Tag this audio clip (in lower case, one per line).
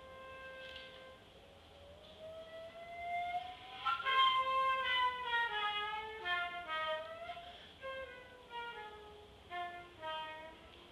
flute
music